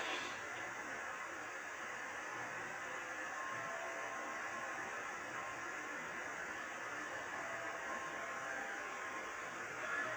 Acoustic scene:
subway train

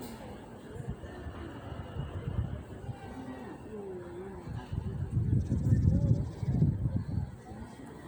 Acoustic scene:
residential area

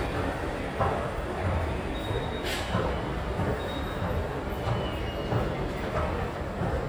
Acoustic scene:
subway station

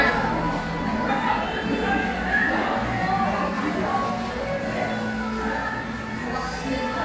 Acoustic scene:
crowded indoor space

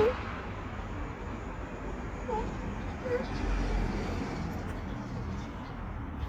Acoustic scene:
street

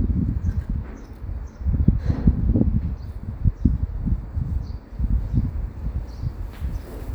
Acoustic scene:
residential area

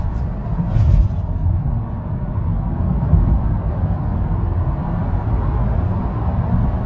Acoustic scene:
car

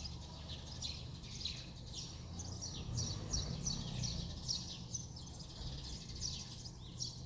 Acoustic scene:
residential area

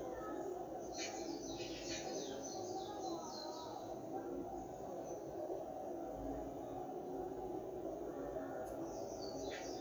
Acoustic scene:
park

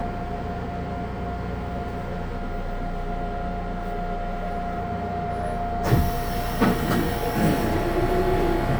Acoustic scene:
subway train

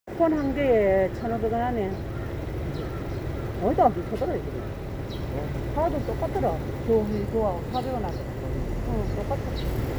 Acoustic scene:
residential area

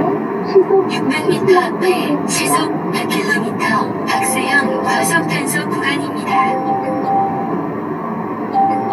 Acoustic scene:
car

